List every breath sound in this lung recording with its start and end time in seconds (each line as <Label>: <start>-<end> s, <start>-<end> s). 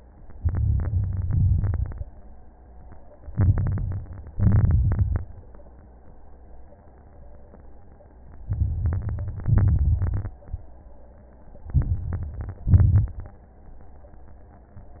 Inhalation: 0.34-1.23 s, 3.30-4.09 s, 8.46-9.46 s, 11.75-12.61 s
Exhalation: 1.26-2.06 s, 4.30-5.26 s, 9.50-10.36 s, 12.69-13.32 s
Crackles: 0.34-1.23 s, 1.26-2.06 s, 3.30-4.09 s, 4.30-5.26 s, 8.46-9.46 s, 9.50-10.36 s, 11.75-12.61 s, 12.69-13.32 s